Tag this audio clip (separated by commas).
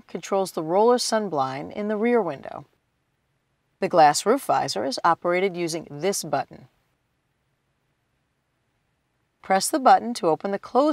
Speech